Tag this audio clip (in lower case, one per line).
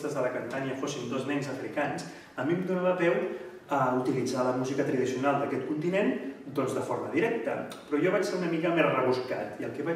speech